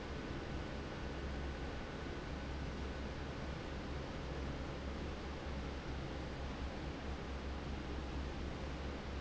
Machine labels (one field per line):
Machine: fan